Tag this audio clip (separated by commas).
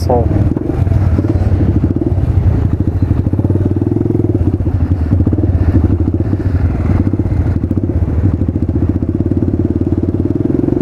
Motorcycle, Speech